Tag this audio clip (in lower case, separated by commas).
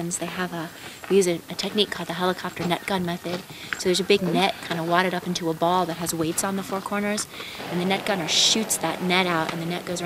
speech